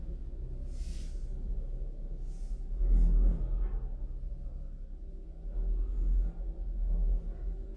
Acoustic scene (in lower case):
elevator